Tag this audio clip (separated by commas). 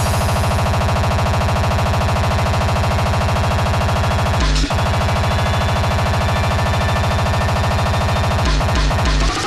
Electronic music, Music